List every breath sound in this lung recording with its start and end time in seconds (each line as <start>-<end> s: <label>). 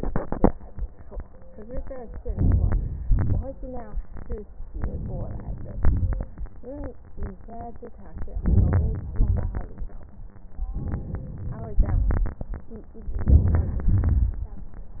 2.27-3.04 s: inhalation
3.04-3.92 s: exhalation
4.75-5.84 s: inhalation
5.84-6.64 s: exhalation
8.39-9.20 s: inhalation
9.23-10.03 s: exhalation
10.79-11.77 s: inhalation
11.77-12.71 s: exhalation
13.08-13.91 s: inhalation
13.91-14.95 s: exhalation